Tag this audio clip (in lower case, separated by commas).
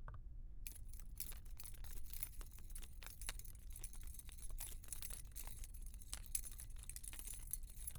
keys jangling, home sounds